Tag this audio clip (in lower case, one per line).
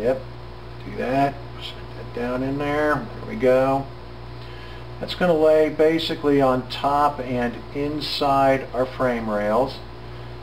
speech